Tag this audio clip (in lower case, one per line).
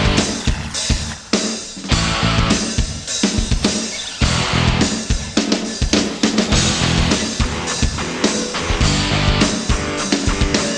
music